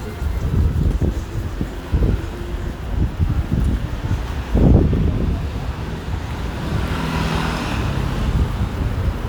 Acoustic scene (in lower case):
residential area